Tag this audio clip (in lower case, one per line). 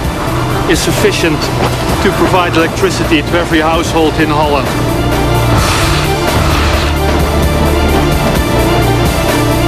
speech
music